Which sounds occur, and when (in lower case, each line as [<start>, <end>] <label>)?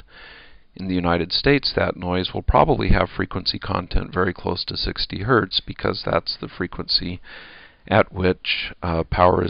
[0.00, 0.72] breathing
[0.00, 9.45] background noise
[0.75, 7.24] man speaking
[7.26, 7.86] breathing
[7.88, 9.45] man speaking